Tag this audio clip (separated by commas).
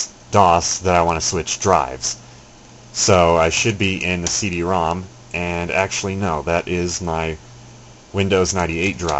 Speech